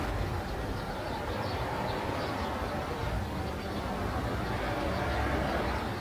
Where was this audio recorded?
in a residential area